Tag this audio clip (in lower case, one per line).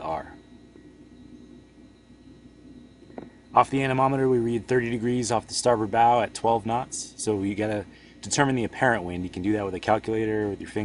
speech